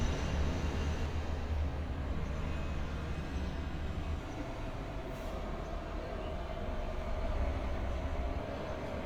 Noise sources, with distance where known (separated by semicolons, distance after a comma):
engine of unclear size